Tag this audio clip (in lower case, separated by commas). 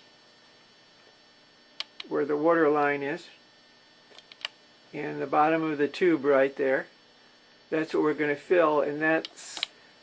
speech